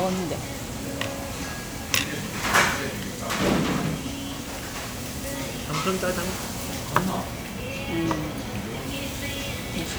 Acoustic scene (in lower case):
restaurant